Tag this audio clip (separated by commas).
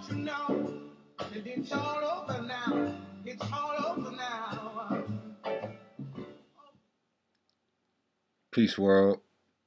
Music, Speech